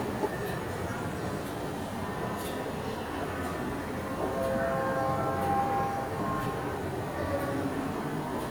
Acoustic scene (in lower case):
subway station